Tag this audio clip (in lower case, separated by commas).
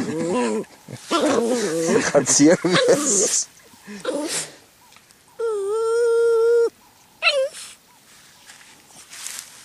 speech, bow-wow